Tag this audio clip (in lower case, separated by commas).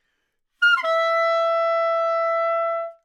music, musical instrument, wind instrument